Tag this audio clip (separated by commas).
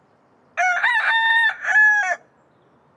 Chicken, Fowl, livestock, Animal